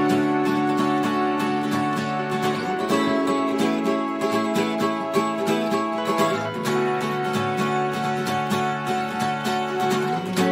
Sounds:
kayak, music, vehicle, boat

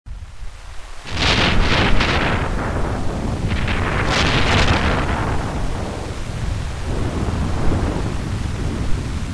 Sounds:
eruption

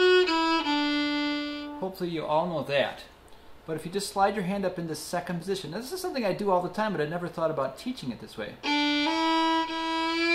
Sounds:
blues, music, speech, musical instrument, violin

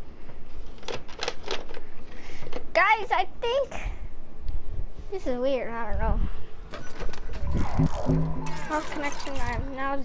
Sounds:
speech, music

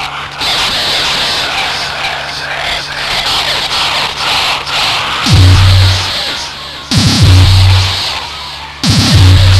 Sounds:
music, progressive rock, heavy metal

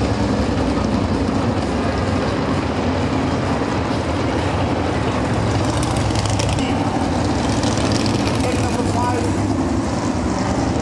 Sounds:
speech, music

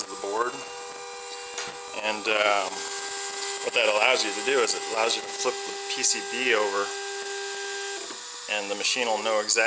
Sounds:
speech, inside a large room or hall

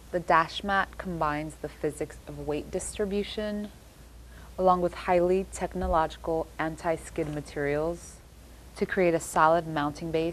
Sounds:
speech

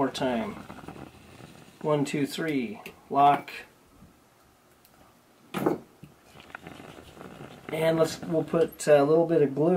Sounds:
inside a small room, speech

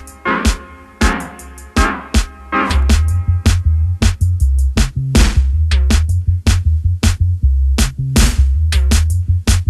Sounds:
reggae, music

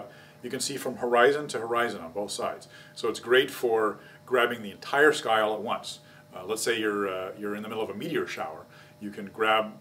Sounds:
speech

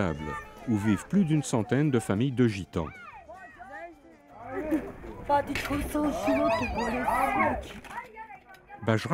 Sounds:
speech

